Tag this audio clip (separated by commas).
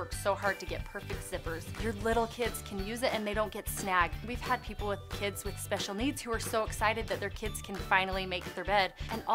Music, Speech